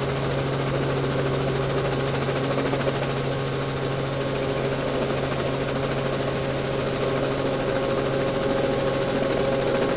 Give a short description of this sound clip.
A running engine of a helicopter vehicle